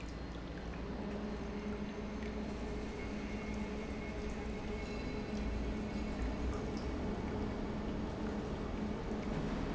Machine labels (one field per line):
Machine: pump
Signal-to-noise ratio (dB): -6 dB